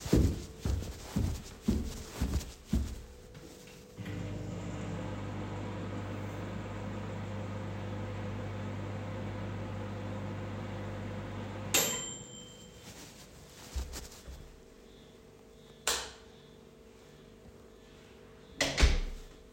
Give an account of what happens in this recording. walk in the kitchen to microwave fish, turn on the lights and close the door